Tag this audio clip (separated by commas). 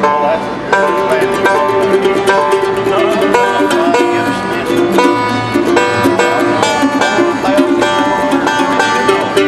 Bluegrass, Music